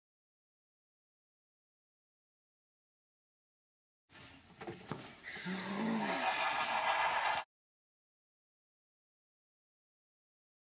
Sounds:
Bird

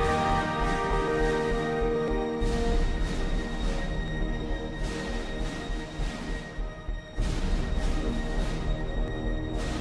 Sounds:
Music

